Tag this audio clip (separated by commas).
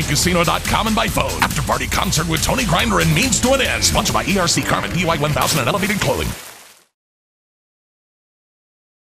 Gurgling, Speech, Music